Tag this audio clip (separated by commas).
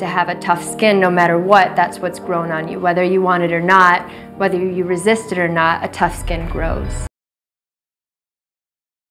Music, Speech